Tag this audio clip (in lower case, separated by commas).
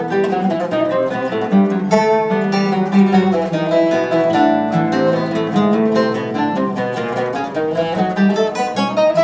guitar, plucked string instrument, acoustic guitar, musical instrument, music